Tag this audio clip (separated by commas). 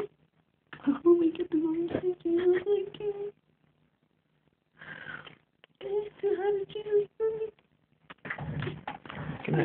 inside a small room, Speech